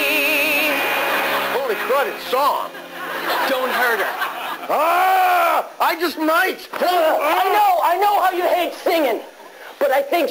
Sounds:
music
female singing
speech

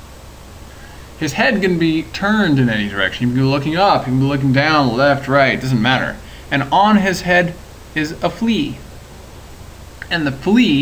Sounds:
speech

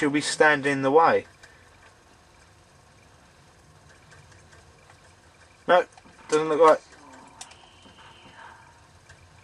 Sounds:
speech

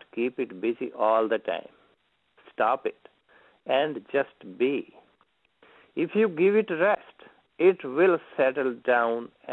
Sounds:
narration
male speech
speech

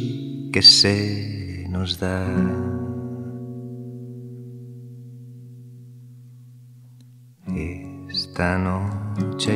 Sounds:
speech
music

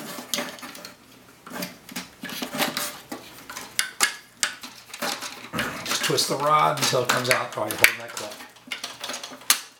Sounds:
speech

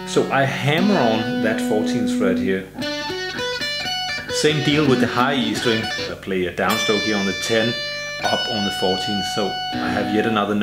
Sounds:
music
guitar
musical instrument
tapping (guitar technique)
plucked string instrument

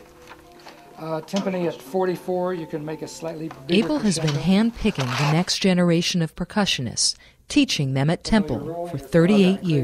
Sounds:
speech

